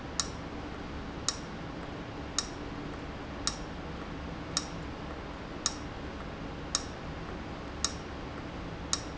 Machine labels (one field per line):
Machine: valve